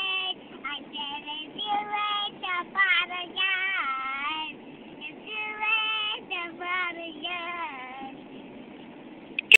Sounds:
Child singing

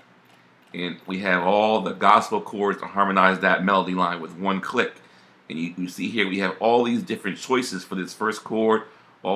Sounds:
Speech

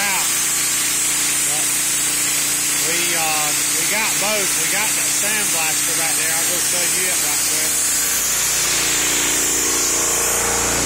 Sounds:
Speech, outside, urban or man-made, Tools

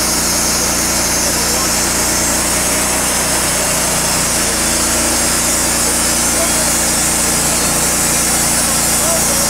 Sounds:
Speech

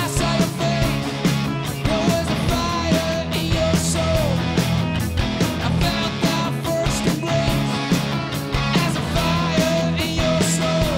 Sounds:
Music

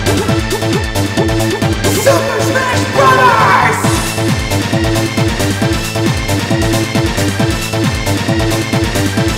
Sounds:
Music, Techno

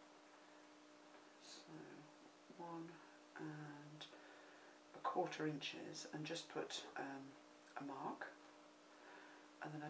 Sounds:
Speech, inside a small room

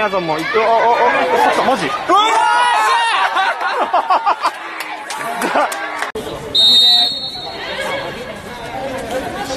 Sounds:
playing lacrosse

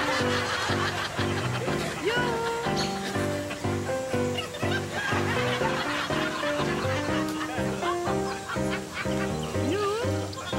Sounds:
Laughter

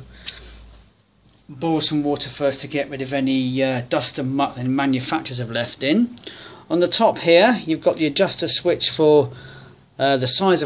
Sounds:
Speech

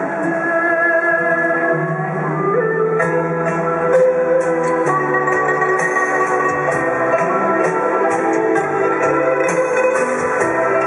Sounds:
playing erhu

